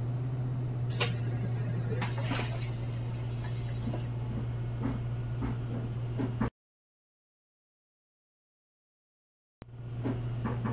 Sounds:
Vehicle, Bus, Speech

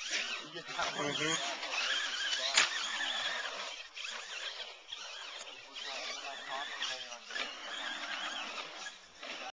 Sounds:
Speech

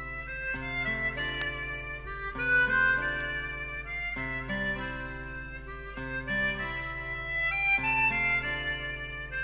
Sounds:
Music, Harmonica

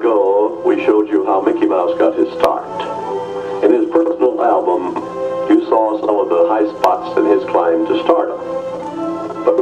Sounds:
Speech, Music

